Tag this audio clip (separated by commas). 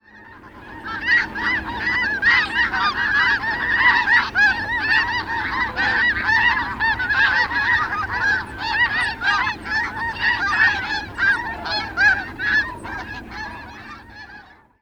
livestock, Fowl, Animal